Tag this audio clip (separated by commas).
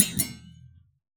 Thump